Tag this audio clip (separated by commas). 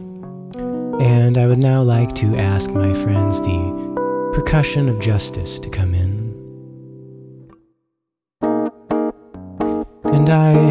Speech, Music